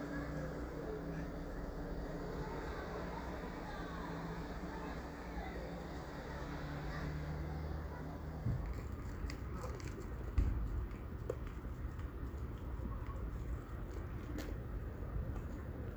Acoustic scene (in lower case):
residential area